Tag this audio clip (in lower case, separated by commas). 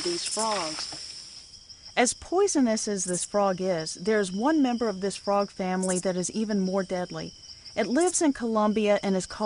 speech, frog